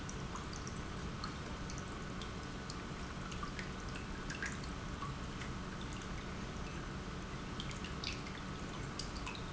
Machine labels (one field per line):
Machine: pump